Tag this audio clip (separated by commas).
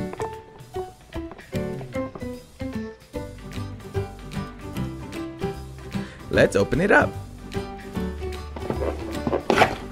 Music, Speech